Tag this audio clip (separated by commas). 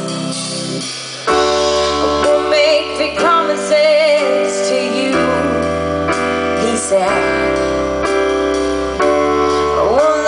Music